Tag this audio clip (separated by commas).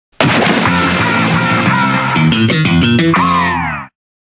Music